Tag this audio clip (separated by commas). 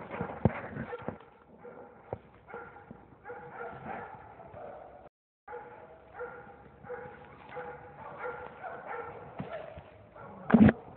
dog baying